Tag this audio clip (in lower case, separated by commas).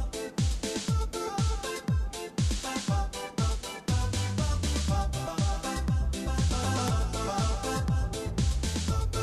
music